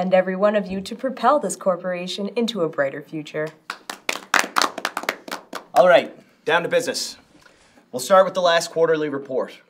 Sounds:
speech

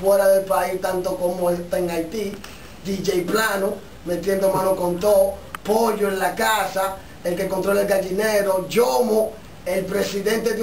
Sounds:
speech

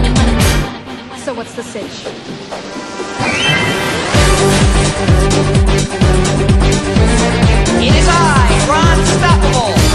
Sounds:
speech
music

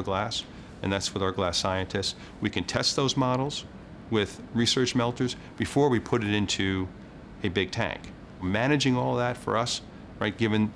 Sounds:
speech

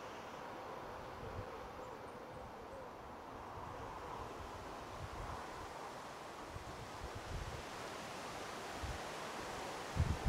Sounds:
music

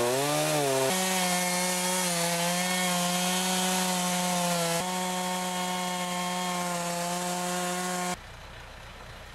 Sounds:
vehicle

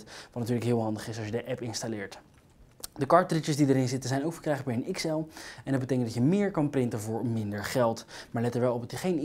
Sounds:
speech

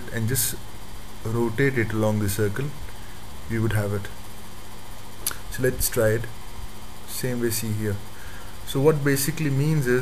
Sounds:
speech

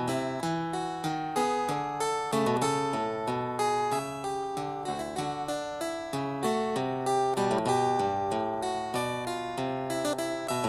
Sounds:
playing harpsichord

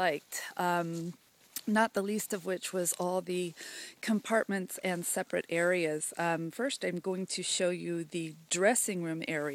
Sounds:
speech

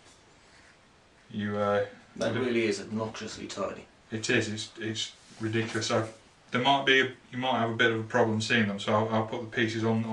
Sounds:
speech

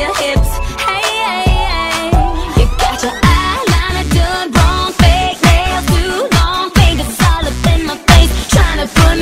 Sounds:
music

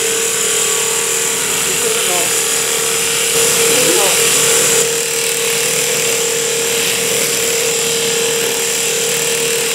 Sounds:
speech

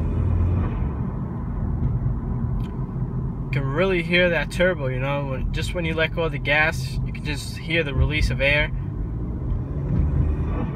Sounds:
speech

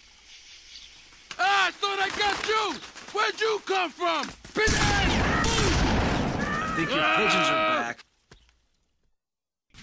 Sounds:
speech

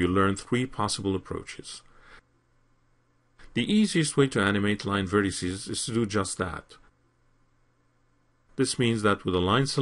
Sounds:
speech

